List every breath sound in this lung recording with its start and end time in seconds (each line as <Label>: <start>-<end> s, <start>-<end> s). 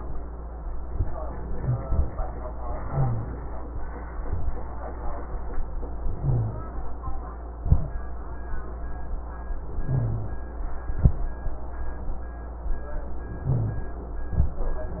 Inhalation: 2.90-3.30 s, 6.17-6.64 s, 9.92-10.40 s, 13.49-13.97 s
Rhonchi: 2.90-3.30 s, 6.17-6.64 s, 9.92-10.40 s, 13.49-13.97 s